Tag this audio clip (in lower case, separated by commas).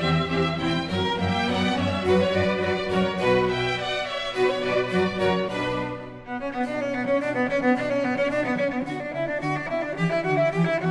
musical instrument, music, cello